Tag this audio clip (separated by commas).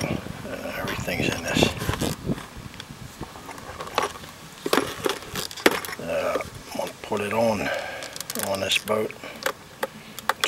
Speech